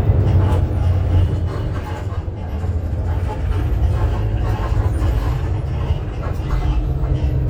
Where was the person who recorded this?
on a bus